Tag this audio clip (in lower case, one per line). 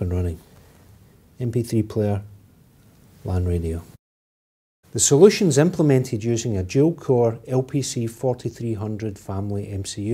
speech